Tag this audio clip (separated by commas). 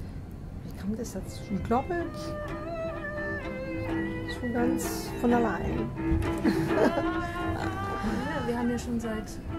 Music, Musical instrument, Speech